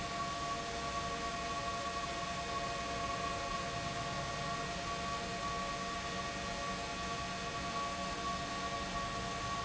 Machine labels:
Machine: pump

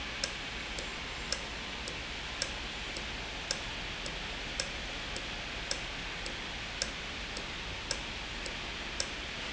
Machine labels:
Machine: valve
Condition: normal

